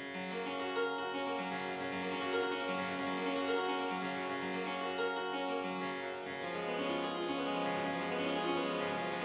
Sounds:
harpsichord
keyboard (musical)
playing harpsichord

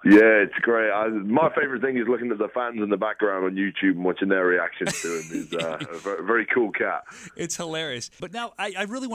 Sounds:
speech

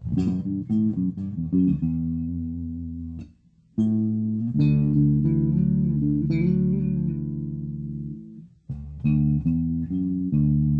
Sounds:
music
musical instrument
plucked string instrument
acoustic guitar
guitar

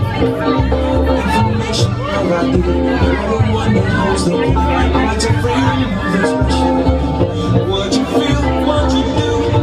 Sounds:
speech
music

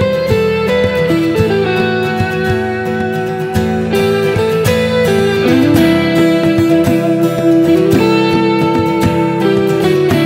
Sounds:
musical instrument
guitar
electric guitar
music
strum
plucked string instrument

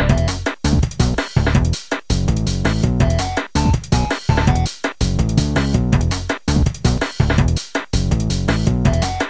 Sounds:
music

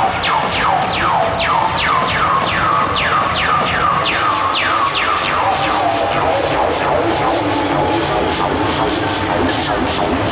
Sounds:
music

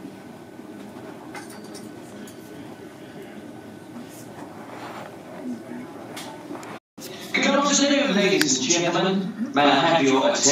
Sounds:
speech

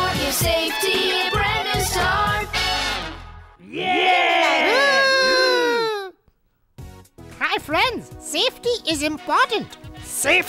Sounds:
speech
music

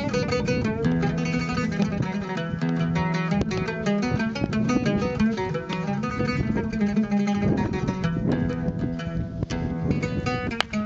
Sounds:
music

